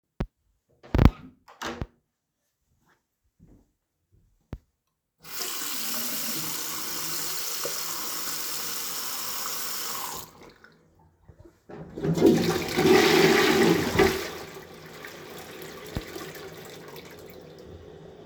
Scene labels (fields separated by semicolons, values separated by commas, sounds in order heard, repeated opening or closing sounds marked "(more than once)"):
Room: bathroom; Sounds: door, running water, toilet flushing